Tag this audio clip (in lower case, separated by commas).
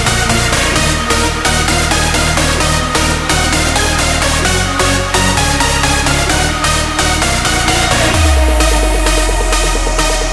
music